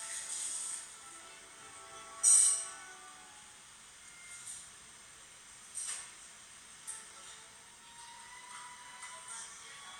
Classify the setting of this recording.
cafe